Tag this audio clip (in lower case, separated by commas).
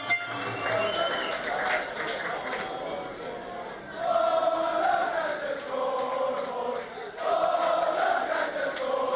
outside, urban or man-made